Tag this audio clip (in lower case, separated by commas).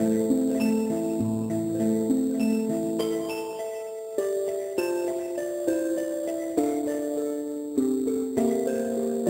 mallet percussion, xylophone, glockenspiel